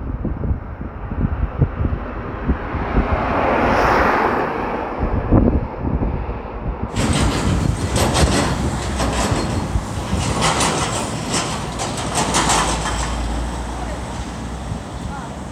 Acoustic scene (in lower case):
street